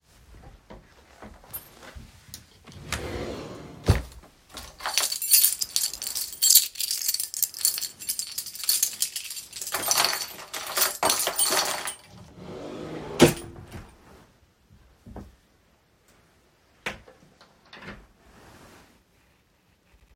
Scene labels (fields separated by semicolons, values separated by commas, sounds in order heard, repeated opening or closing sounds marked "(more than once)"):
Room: bedroom; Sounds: wardrobe or drawer (more than once), keys